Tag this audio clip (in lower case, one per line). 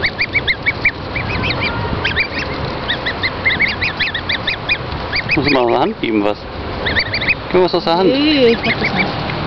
speech